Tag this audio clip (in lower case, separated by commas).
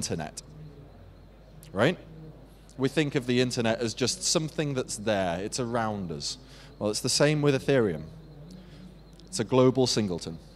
speech